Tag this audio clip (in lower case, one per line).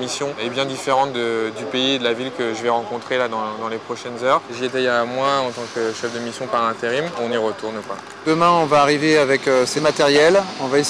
speech